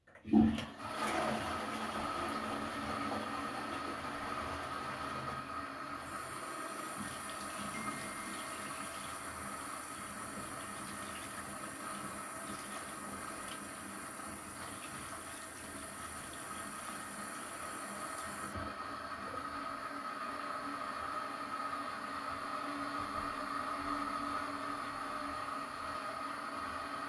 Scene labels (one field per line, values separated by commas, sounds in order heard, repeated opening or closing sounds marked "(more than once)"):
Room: bathroom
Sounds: toilet flushing, running water, phone ringing